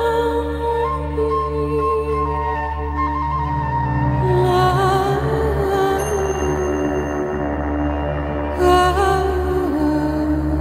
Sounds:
Music

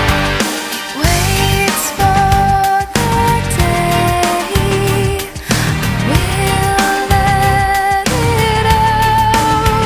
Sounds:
Music

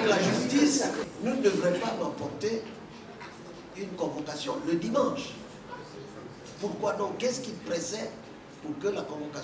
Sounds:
Speech

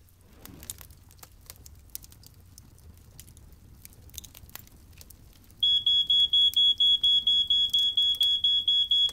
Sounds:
smoke detector beeping

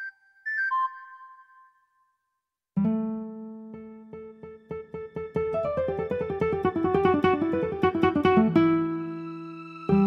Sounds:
Music, Electric piano, New-age music, Piano

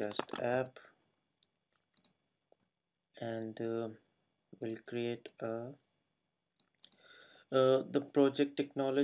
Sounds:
Speech, Clicking

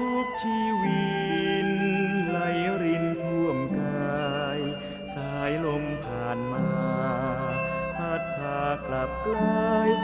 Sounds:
Music

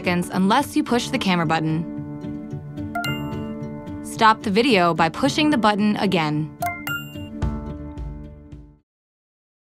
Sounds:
Music, Speech

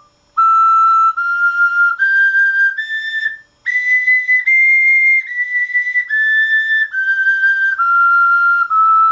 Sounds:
Whistle

